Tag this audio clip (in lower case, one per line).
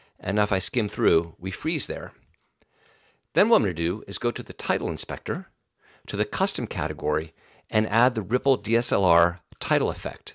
speech